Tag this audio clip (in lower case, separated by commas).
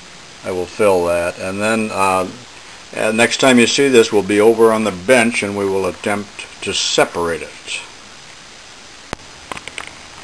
speech